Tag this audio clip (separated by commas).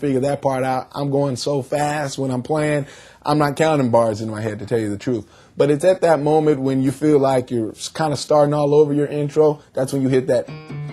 Speech